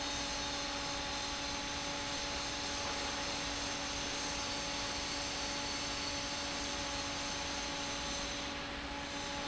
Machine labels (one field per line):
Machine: fan